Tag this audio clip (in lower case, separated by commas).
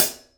music, musical instrument, hi-hat, cymbal, percussion